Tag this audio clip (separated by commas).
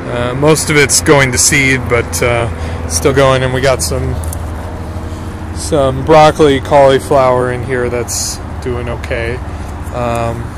Speech